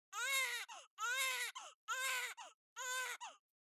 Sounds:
Human voice, sobbing

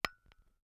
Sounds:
Glass, Tap

